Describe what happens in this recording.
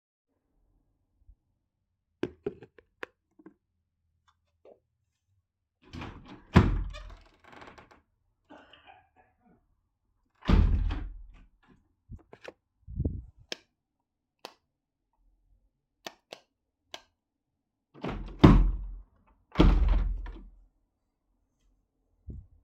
I opened the door, checked lights in the room and then closed the door